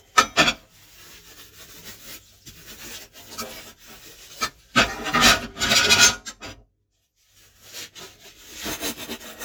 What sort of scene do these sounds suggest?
kitchen